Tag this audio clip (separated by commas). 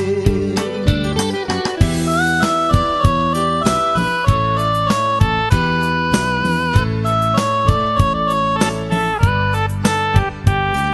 Singing, Music